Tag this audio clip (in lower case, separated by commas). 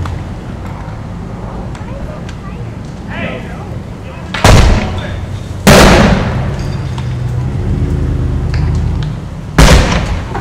speech